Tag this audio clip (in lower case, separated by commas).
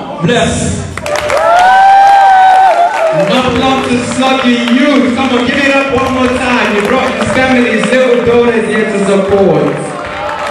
speech, cheering